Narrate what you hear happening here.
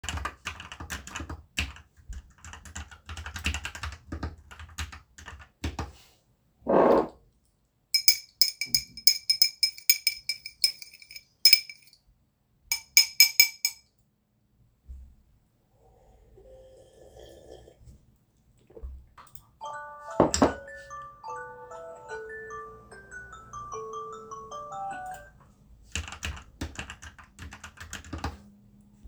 I was sitting at the desk, typing on the keyboard. Then I drank some coffee, and got my phone alarm went off. I turned it off and continued typing on the keyboard.